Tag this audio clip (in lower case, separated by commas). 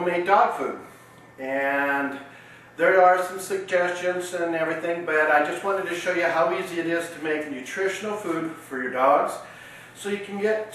speech